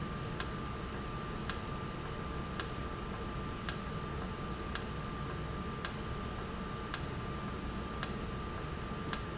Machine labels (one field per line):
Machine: valve